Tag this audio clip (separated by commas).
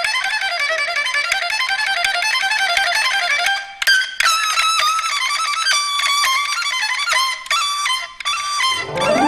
inside a large room or hall, Musical instrument, Music, Classical music